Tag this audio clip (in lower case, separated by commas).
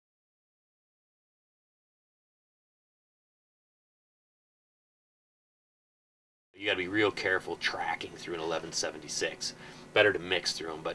speech